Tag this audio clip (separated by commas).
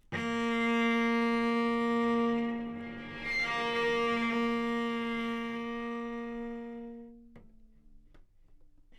Musical instrument, Music, Bowed string instrument